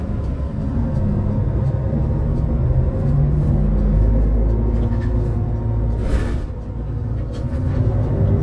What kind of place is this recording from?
bus